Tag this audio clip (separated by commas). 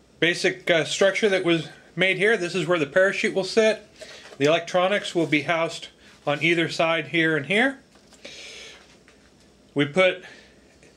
Speech